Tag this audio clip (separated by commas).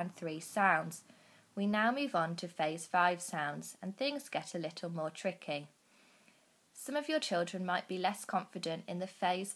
Speech